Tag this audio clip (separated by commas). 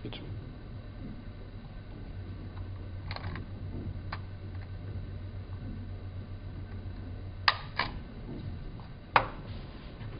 Speech